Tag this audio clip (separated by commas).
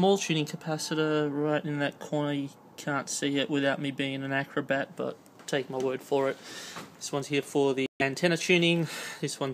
Speech